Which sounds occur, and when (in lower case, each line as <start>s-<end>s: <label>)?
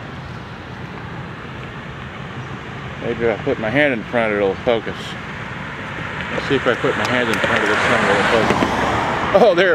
0.0s-9.7s: mechanisms
3.0s-5.0s: man speaking
6.5s-8.5s: man speaking
7.0s-7.1s: generic impact sounds
7.3s-7.6s: generic impact sounds
8.4s-8.7s: generic impact sounds
9.3s-9.7s: man speaking